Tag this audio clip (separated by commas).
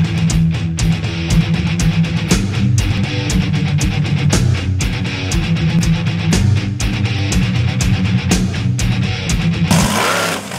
Vehicle, Truck, Music